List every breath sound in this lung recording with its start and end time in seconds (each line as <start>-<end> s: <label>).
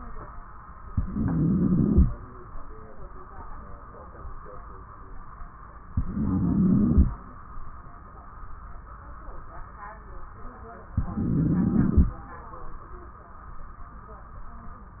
0.90-2.11 s: inhalation
0.90-2.11 s: wheeze
5.89-7.10 s: inhalation
5.89-7.10 s: wheeze
10.96-12.17 s: inhalation
10.96-12.17 s: wheeze